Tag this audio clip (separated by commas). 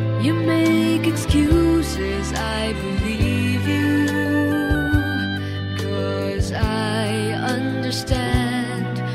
Music